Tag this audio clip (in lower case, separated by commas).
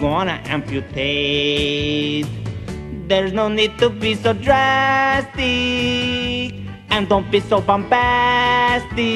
music